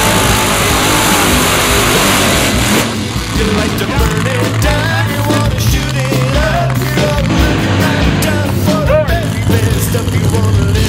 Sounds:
music
vehicle
car

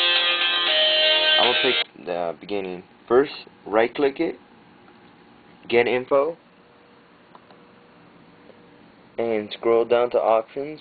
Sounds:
music
speech

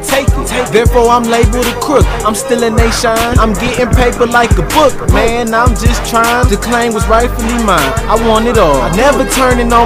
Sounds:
music
soundtrack music

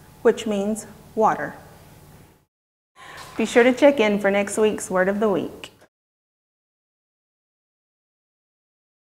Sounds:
speech

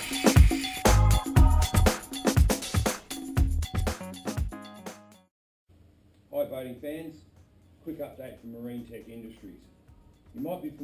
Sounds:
music
speech

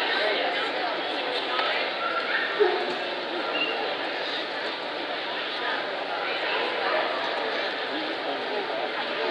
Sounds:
speech

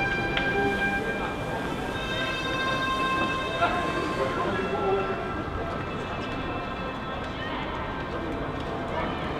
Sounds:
music
speech

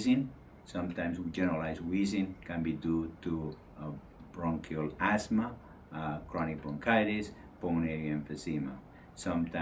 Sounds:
speech

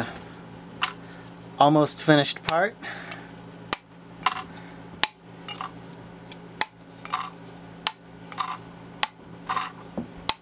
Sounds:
dishes, pots and pans

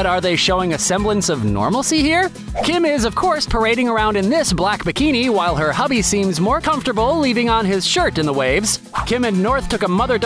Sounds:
music
speech

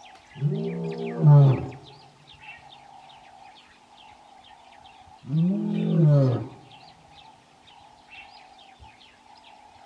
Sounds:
lions roaring

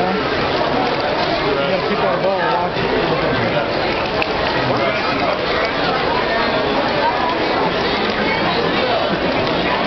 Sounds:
speech

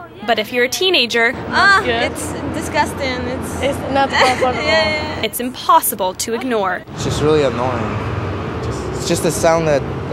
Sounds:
speech

